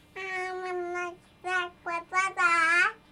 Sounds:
speech, human voice

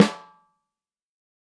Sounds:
snare drum, musical instrument, music, drum, percussion

